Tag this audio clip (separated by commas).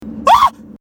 Screaming, Human voice